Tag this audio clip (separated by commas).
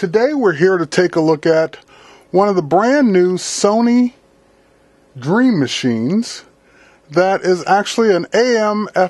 Speech